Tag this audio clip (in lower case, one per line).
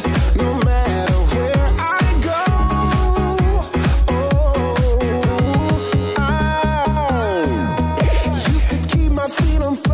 jazz
music
funk
rhythm and blues